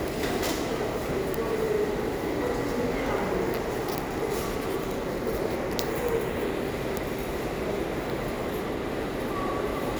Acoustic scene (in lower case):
subway station